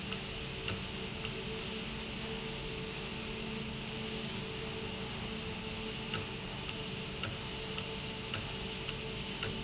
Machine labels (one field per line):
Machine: valve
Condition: normal